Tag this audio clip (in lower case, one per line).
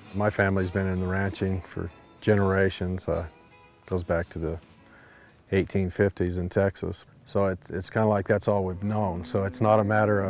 music
speech